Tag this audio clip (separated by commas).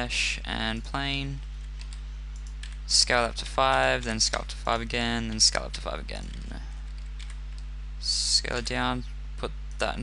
Speech